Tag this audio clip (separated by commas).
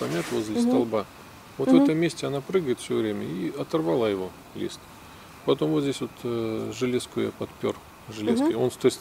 Speech